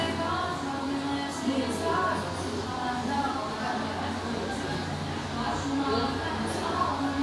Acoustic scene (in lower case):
cafe